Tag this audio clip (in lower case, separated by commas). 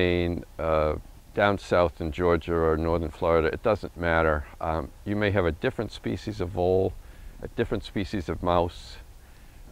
speech